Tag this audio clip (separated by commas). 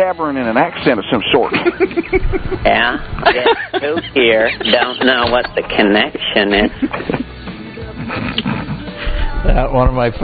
Speech, Music